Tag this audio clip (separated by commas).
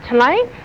Human voice